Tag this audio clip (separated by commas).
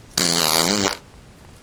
Fart